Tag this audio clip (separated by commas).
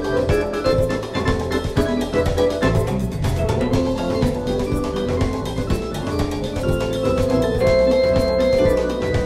Music